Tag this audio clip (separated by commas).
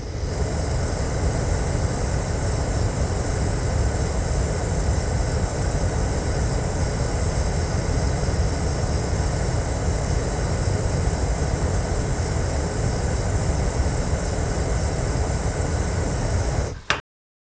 Fire